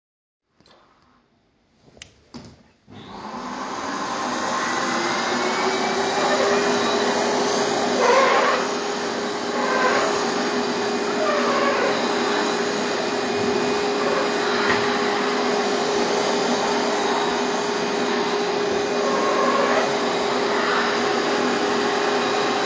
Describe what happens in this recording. I took a few steps toward the vacuum and the I started vacuuming.